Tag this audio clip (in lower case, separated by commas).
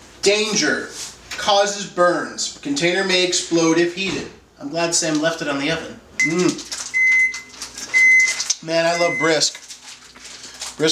speech